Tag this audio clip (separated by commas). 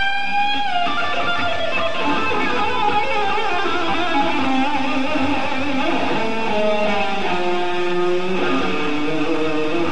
Musical instrument, Strum, Plucked string instrument, Electric guitar, Music, Guitar